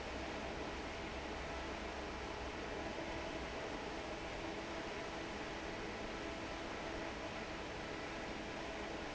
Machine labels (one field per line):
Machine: fan